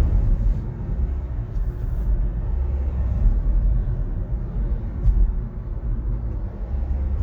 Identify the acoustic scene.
car